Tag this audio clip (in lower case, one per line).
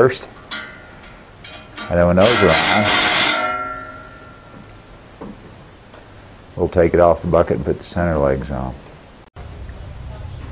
speech